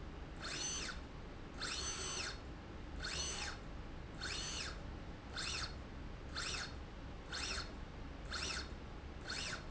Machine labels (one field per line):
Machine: slide rail